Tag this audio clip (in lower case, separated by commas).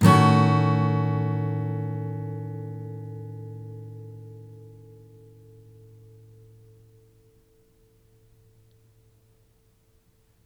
music, strum, guitar, plucked string instrument, musical instrument